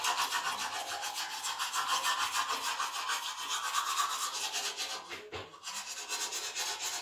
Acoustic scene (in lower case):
restroom